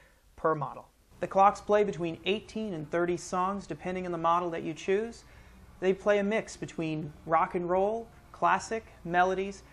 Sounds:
Speech

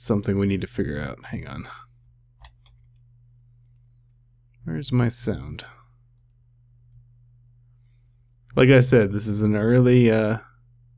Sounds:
Speech

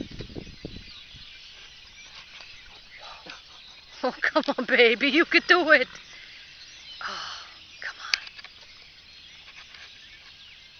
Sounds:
Speech

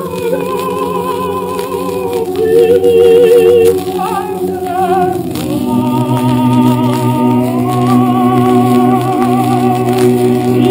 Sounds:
Music, Choir

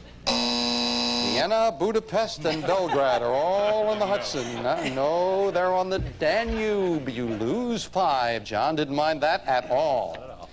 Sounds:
Hum

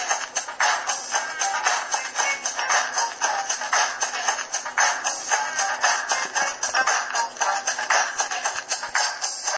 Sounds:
Television, Music

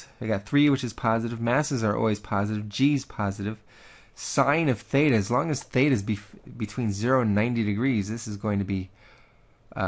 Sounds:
Speech

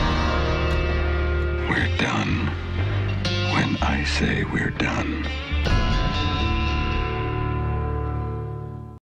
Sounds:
Speech, Music

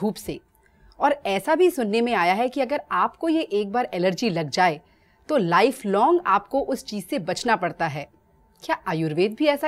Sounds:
Speech

